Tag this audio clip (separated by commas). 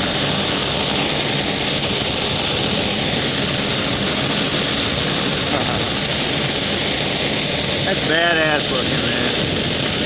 Speech, Vehicle, Aircraft, Fixed-wing aircraft